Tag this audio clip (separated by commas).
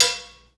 Domestic sounds, dishes, pots and pans